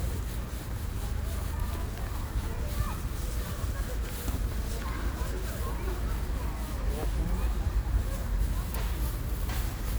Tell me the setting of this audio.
residential area